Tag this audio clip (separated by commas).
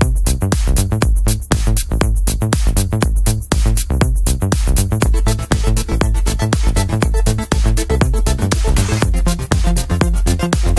Disco, Music